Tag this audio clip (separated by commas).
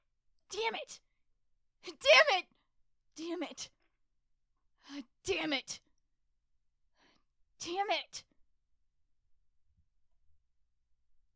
Human voice, Shout, Yell